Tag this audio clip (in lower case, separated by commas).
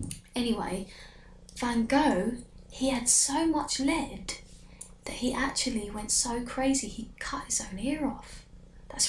narration, speech